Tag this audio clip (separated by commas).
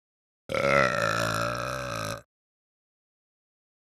Burping